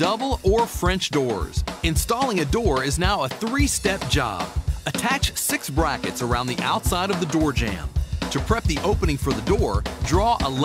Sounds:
Speech, Music

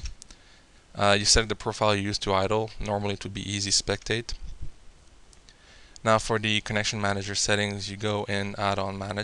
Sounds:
Speech

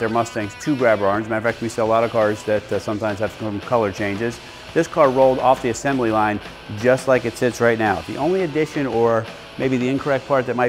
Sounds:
Music, Speech

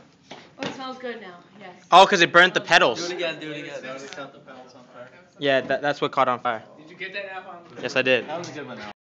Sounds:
Speech

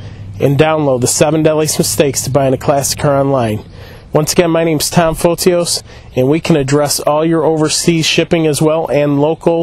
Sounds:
Speech

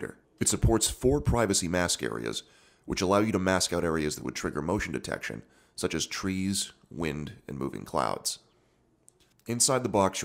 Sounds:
Speech

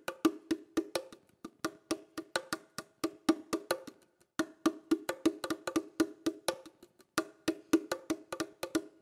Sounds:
playing bongo

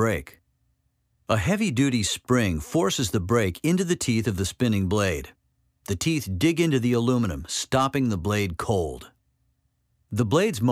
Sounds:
Speech

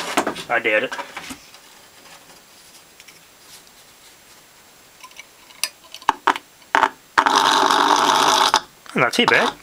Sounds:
Speech

